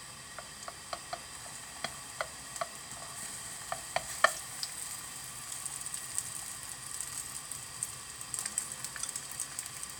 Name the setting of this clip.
kitchen